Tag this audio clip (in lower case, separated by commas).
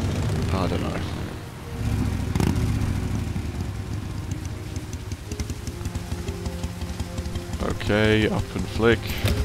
raindrop, rain on surface, rain